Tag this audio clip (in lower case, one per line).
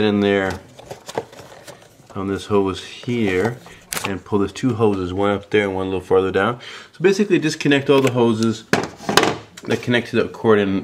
speech
inside a small room